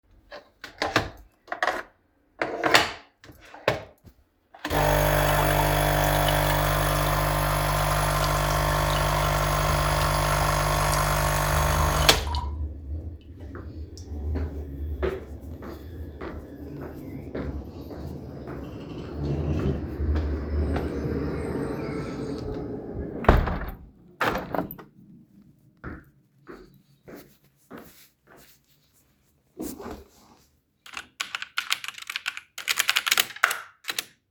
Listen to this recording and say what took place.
I turned on the coffee machine and waited for the coffee to be done. After that, I went to close the window in the living room and get back to my desk to continue my work on the computer.